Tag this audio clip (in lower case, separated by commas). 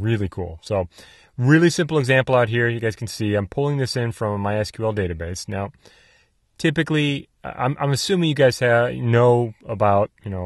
speech